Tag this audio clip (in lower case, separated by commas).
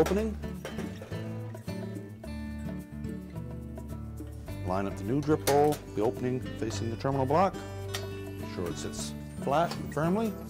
music, speech